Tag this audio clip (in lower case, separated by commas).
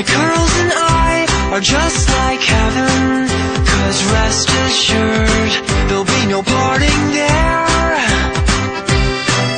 music